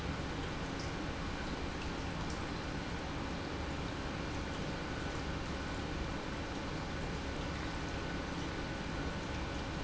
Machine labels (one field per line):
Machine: pump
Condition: normal